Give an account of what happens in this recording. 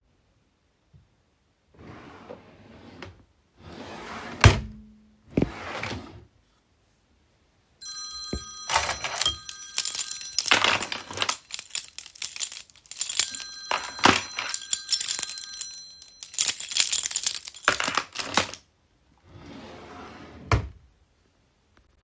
In the bedroom with the device stationary, a wardrobe or drawer is opened while searching for something. A keychain is handled, producing short jingle sounds near the microphone. During this, a phone rings briefly, overlapping with the keychain handling.